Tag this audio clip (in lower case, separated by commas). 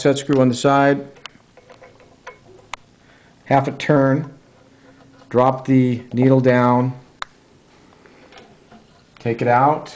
speech